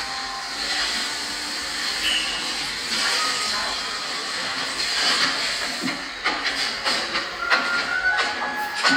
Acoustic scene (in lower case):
cafe